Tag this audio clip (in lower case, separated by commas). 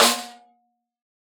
music, snare drum, drum, percussion, musical instrument